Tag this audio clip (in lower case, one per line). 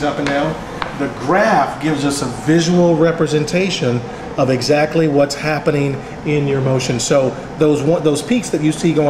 speech